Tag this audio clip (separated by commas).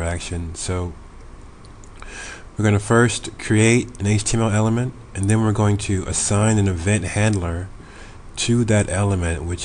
Speech